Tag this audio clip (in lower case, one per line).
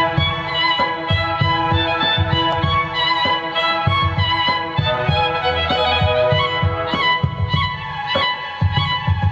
music
violin
musical instrument